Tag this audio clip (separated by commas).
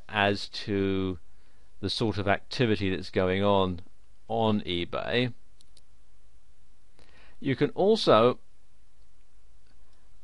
Speech